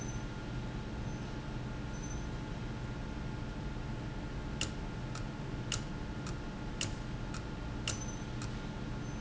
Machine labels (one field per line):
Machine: valve